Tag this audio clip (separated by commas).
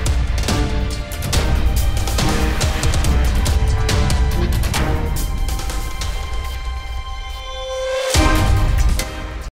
Music